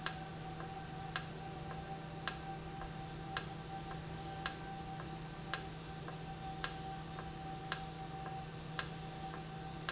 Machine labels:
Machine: valve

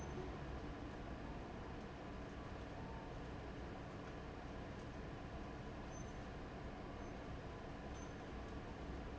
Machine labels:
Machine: fan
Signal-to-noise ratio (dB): 6 dB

